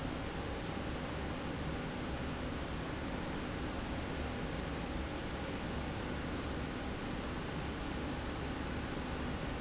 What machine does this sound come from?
slide rail